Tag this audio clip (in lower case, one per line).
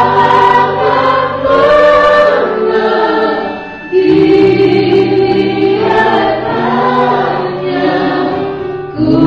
choir
vocal music
christian music
singing
gospel music
music